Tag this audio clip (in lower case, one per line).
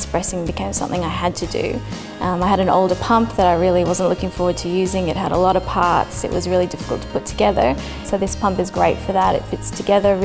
speech
music